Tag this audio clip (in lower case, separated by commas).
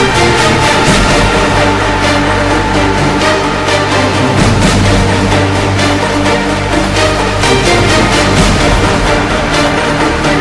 musical instrument, music